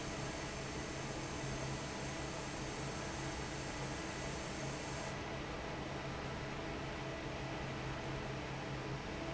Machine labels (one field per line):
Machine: fan